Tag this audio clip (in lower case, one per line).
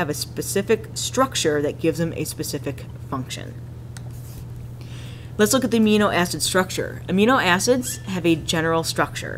narration